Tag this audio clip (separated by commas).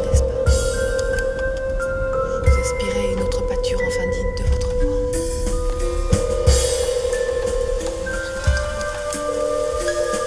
Musical instrument, Music, Speech, Guitar, Plucked string instrument